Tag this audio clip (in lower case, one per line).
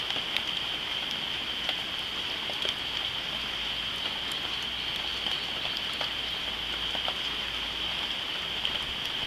outside, rural or natural